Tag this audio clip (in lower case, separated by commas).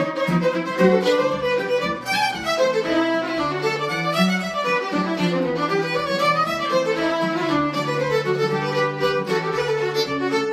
musical instrument, fiddle, music, pizzicato